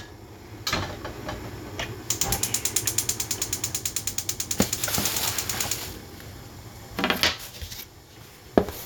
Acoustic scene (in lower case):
kitchen